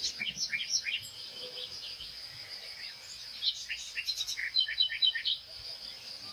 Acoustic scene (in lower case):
park